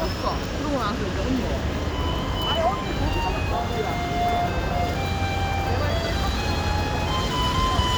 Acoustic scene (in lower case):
residential area